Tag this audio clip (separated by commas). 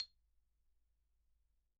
Mallet percussion, Marimba, Musical instrument, Percussion, Music